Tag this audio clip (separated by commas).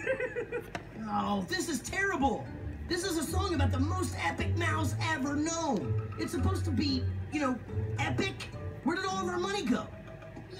Music, Speech